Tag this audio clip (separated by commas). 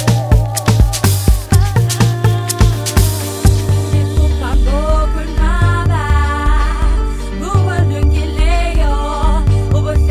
Electronic music, Electronic dance music, Music